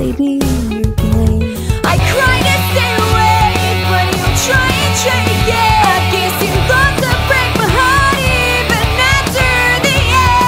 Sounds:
exciting music, music

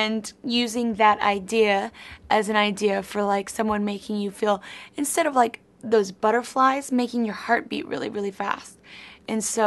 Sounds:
speech

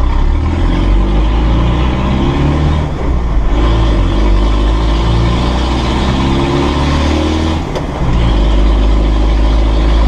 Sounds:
car, revving, vehicle

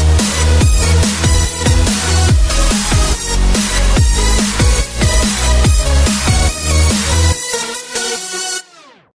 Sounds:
music

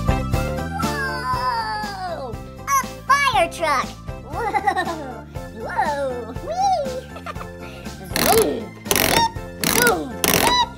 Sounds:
music for children, music, speech, kid speaking

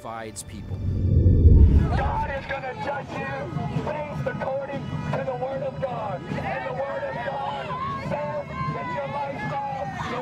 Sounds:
speech, music

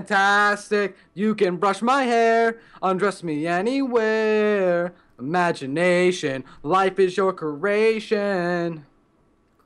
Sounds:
male singing

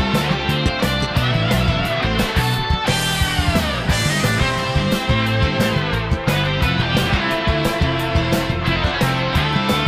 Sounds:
pop music, funk, music

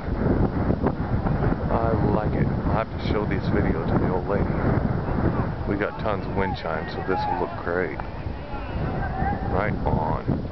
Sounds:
wind

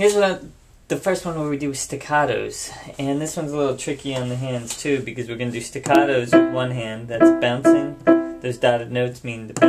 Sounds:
speech, music

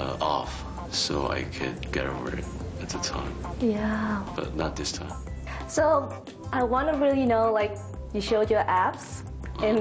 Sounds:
music, woman speaking, speech

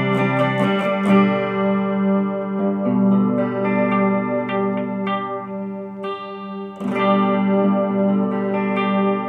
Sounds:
distortion, plucked string instrument, guitar, effects unit, music, musical instrument

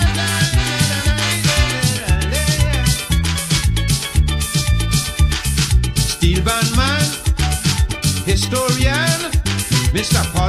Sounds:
middle eastern music, music, happy music, jazz

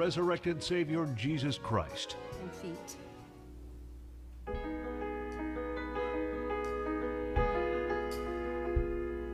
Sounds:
music, speech

